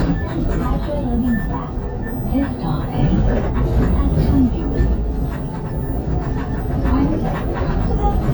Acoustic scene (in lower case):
bus